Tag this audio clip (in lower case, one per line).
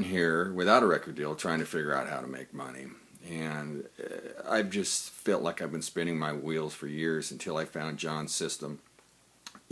speech